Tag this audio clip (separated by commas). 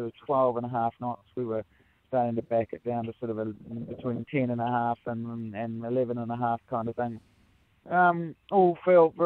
Speech